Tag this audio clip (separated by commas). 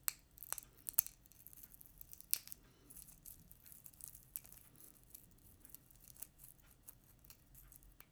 Crackle, Crack